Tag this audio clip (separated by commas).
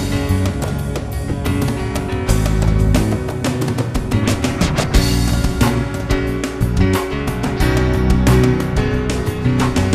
Background music, Music